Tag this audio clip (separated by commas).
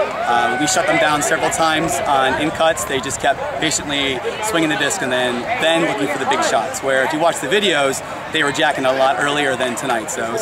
Speech